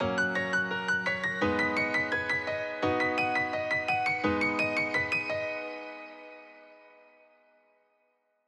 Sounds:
music, musical instrument, keyboard (musical), piano

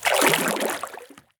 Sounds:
liquid, splash

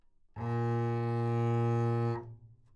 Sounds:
music, bowed string instrument, musical instrument

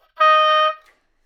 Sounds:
music, musical instrument, wind instrument

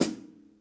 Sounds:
percussion, drum, musical instrument, snare drum, music

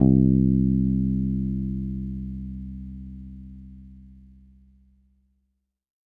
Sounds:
music, musical instrument, guitar, bass guitar, plucked string instrument

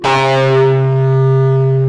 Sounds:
plucked string instrument, music, electric guitar, guitar, bass guitar, musical instrument

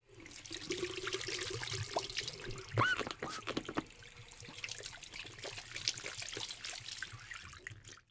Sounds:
liquid, sink (filling or washing), trickle, squeak, domestic sounds, pour

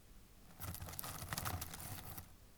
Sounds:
crackle

